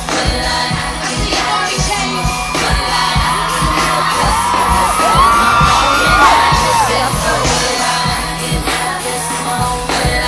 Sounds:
music, singing, outside, urban or man-made

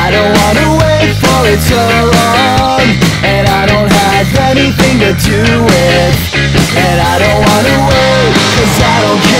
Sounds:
music, grunge

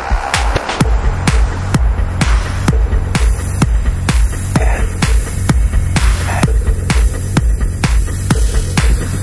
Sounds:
techno, music, electronic music

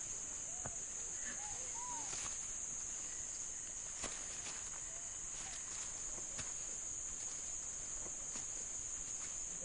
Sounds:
animal

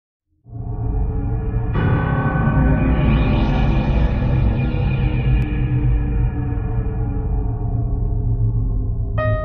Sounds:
music, soundtrack music

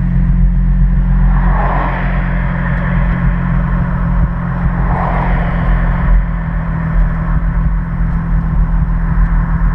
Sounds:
car passing by

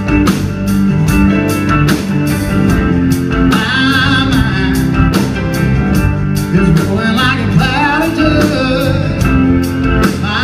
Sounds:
music

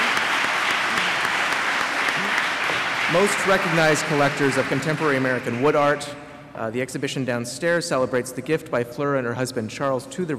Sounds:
speech

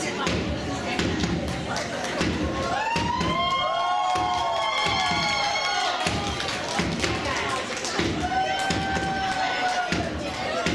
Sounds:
speech, music

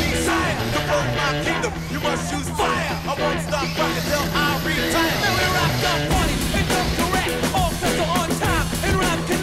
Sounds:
music

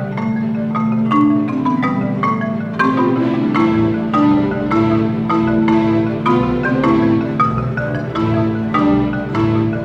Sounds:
mallet percussion, percussion, glockenspiel

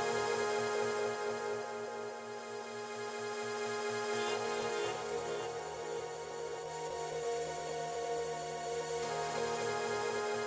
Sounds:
music

